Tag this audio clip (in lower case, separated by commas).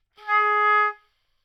woodwind instrument, musical instrument, music